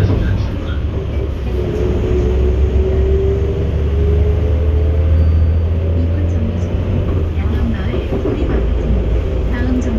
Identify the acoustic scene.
bus